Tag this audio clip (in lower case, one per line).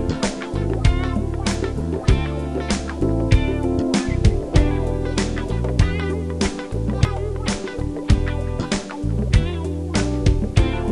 music